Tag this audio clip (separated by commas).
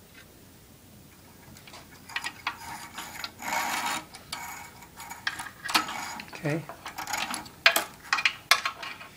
Speech